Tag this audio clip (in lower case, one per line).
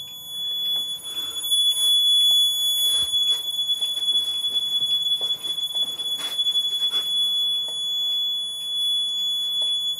smoke alarm